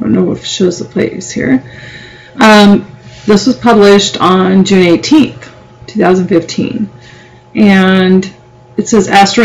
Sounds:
speech

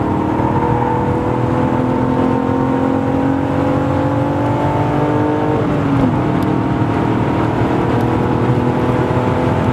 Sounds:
vehicle
revving
car
accelerating

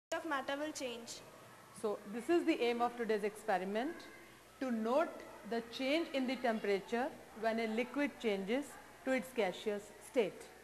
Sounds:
speech
woman speaking

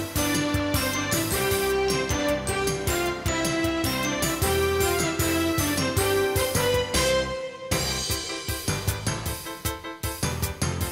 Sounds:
music

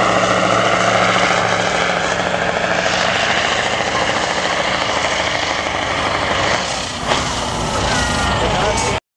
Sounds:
vehicle
truck

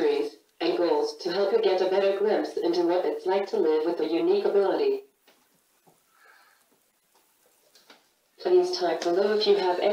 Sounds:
inside a small room
speech

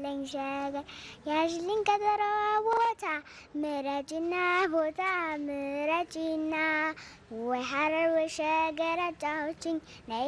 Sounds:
child singing

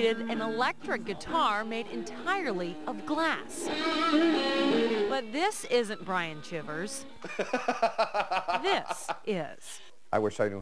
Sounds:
musical instrument
speech
acoustic guitar
music
strum
plucked string instrument
guitar

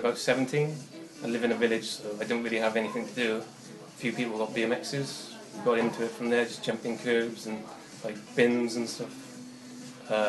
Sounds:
music
speech

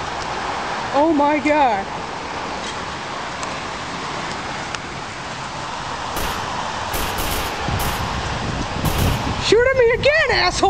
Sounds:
speech

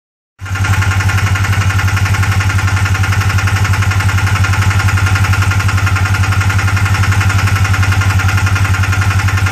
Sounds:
car engine knocking

